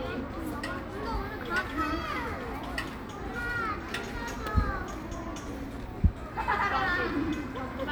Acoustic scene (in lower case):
park